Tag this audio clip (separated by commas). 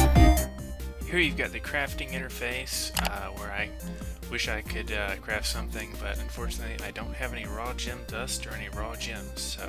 Speech, Music